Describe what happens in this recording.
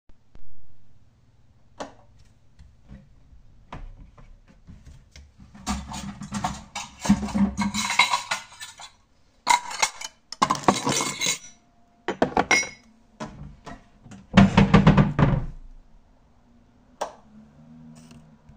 I turned on the light then opened the wardrobe and get the cutlery and dishes , and put them out, then closed the wardrobe and finally turn off the light.